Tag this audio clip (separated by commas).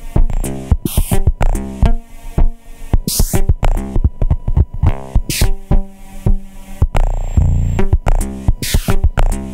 Music, Musical instrument